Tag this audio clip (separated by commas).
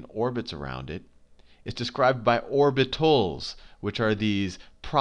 Speech